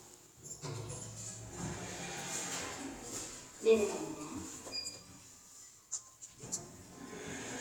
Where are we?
in an elevator